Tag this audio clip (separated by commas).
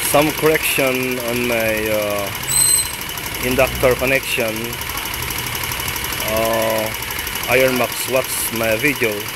outside, urban or man-made, Speech, Engine, Motorcycle, Vehicle